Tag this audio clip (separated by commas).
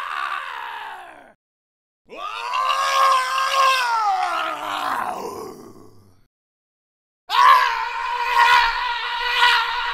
Screaming